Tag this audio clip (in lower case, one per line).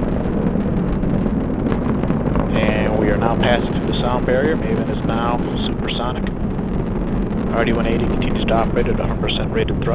missile launch